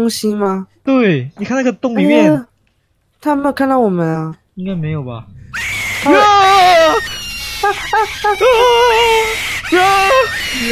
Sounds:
people screaming

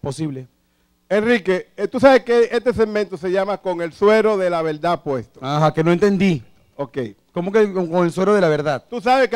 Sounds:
speech

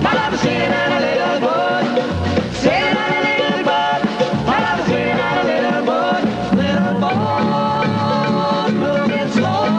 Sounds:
music

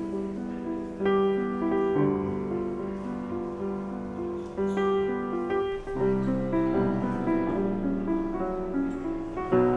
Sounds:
music

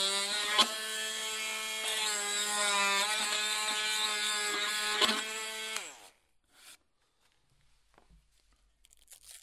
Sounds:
wood, tools

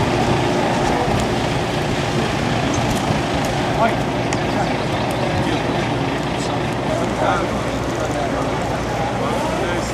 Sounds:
motor vehicle (road), emergency vehicle, speech, truck, vehicle, car

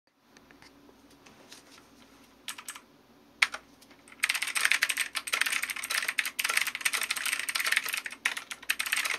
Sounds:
typing on computer keyboard, computer keyboard

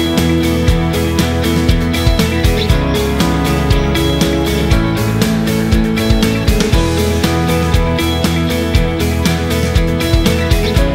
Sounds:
music

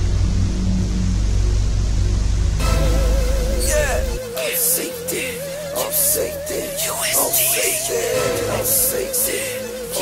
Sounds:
music, singing

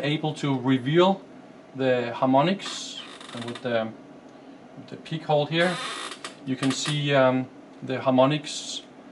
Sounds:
speech

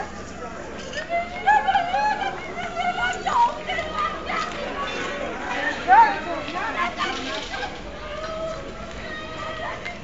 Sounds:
speech

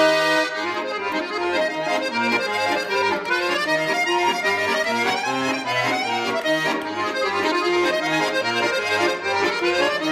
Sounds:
music

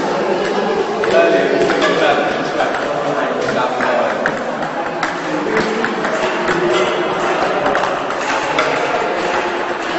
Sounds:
speech

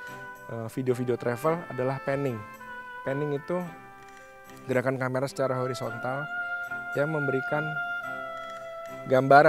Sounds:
music, speech

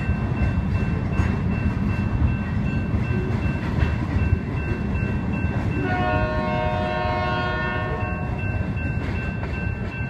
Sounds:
train horning

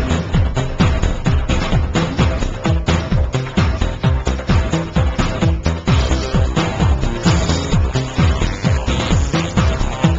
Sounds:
music

